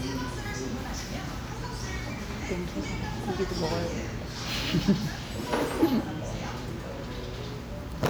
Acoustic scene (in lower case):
restaurant